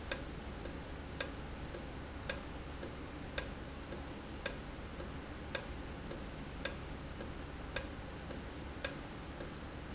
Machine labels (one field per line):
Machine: valve